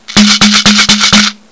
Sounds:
rattle (instrument), musical instrument, percussion, music

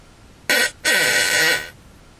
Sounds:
fart

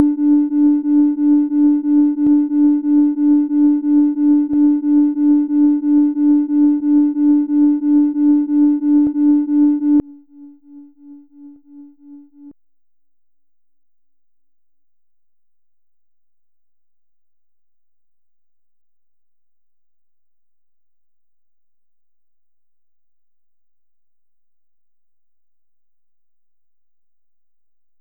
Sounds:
alarm

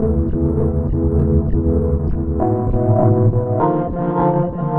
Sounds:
keyboard (musical), musical instrument, music, organ

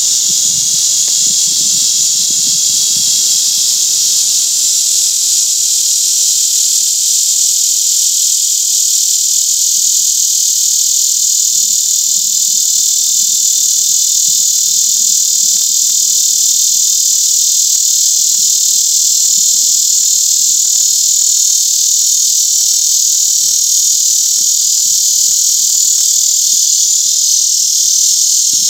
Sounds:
wild animals, animal, insect

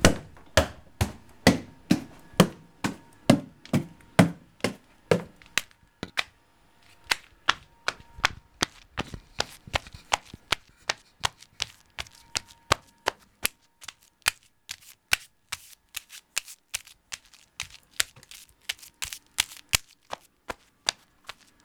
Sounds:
run

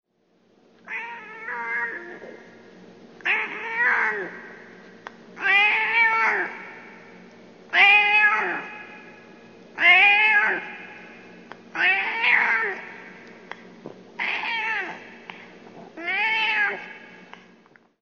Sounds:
animal, cat, domestic animals

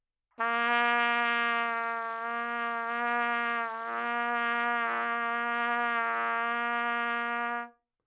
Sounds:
music, brass instrument, trumpet, musical instrument

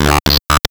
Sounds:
speech, speech synthesizer, human voice

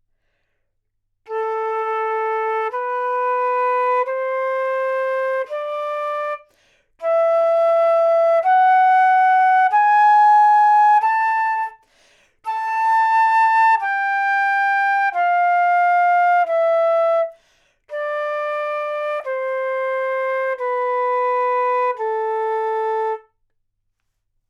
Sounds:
musical instrument, music, wind instrument

